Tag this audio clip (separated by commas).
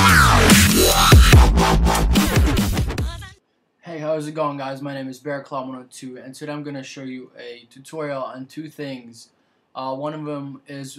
Speech, Music